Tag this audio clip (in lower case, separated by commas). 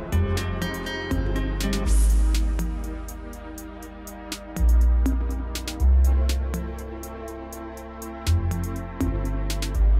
music